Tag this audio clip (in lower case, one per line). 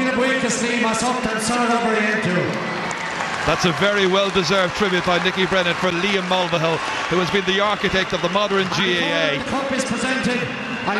male speech
speech
monologue